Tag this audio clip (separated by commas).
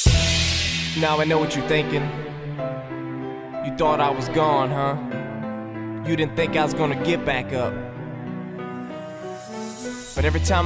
Music